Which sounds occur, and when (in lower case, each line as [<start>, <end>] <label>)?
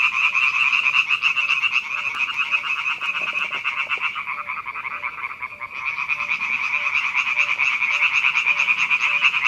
[0.00, 9.45] frog
[0.00, 9.45] wind
[0.22, 0.38] bird
[0.73, 0.92] bird
[1.33, 1.47] bird
[1.90, 2.06] bird
[2.48, 2.65] bird
[3.04, 3.57] generic impact sounds
[3.10, 3.25] bird
[3.72, 3.88] bird
[3.79, 4.10] generic impact sounds
[4.32, 4.50] bird
[4.92, 5.08] bird
[5.50, 5.65] bird
[6.16, 6.31] bird
[6.71, 6.87] bird
[7.32, 7.50] bird
[7.86, 8.05] bird
[8.46, 8.65] bird
[9.03, 9.22] bird